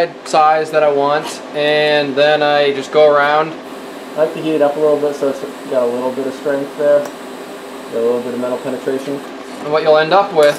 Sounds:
speech

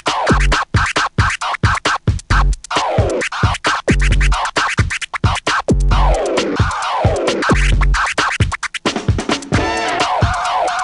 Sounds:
hip hop music
music
scratching (performance technique)

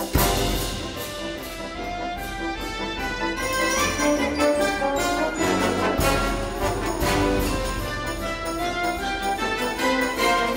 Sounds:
music

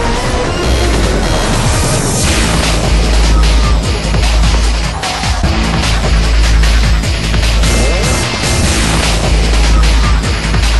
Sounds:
music

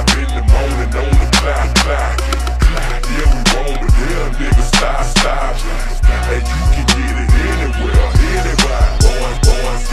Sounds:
hip hop music
music

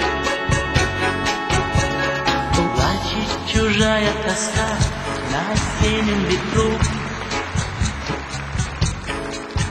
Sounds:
music

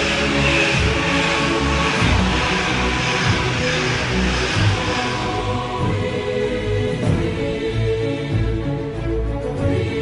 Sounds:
music

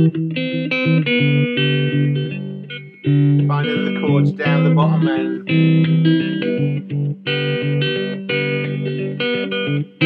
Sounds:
plucked string instrument
guitar
music
echo
inside a small room
musical instrument
speech

